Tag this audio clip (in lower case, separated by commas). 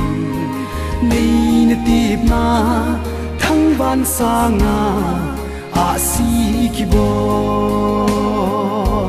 music, singing